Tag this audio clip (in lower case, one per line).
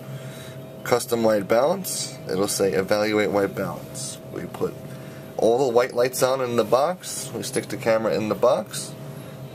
speech